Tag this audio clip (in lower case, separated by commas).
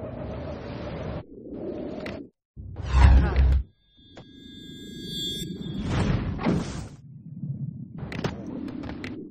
swoosh